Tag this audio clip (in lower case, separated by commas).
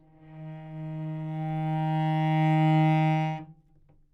bowed string instrument, music, musical instrument